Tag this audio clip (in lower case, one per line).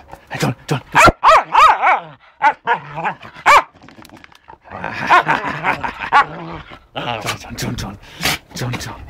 bow-wow
speech
dog bow-wow